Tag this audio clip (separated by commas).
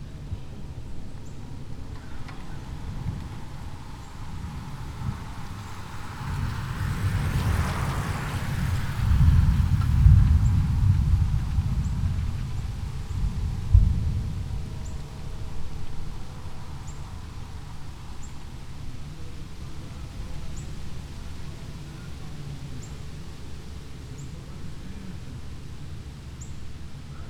Bicycle, Vehicle, Thunder, Thunderstorm